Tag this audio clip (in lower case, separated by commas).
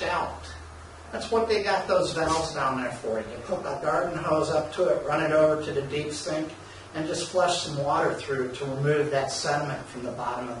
speech